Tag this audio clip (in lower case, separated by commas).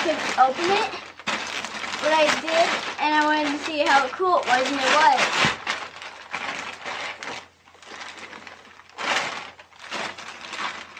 speech